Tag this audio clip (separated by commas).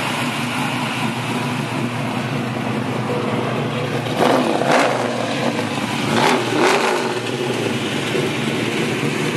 Vehicle, outside, urban or man-made, Accelerating, Car